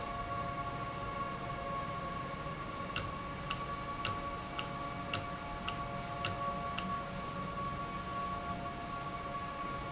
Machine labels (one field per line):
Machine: valve